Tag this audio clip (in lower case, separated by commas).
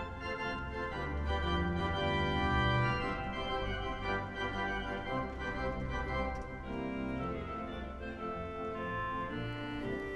music